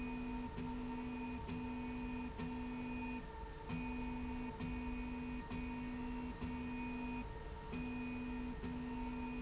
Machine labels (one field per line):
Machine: slide rail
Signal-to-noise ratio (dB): 6 dB